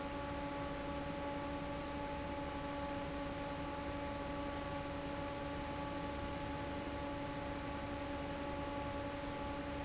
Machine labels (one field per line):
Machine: fan